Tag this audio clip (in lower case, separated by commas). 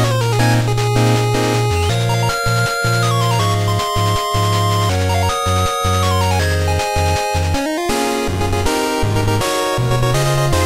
music